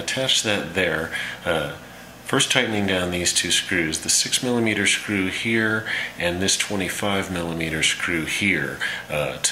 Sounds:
speech

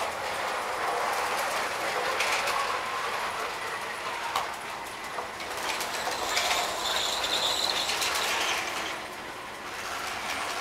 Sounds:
engine

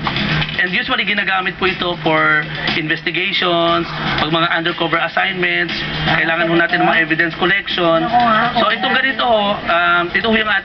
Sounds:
speech

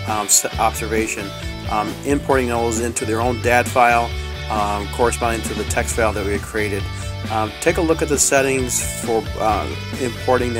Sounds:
speech
music

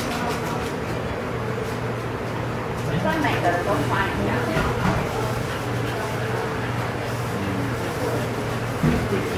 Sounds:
speech

